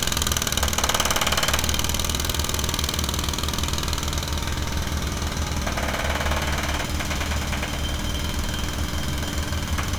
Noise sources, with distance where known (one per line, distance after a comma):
jackhammer, near